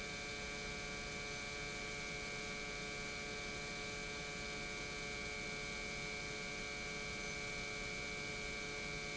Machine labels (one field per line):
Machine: pump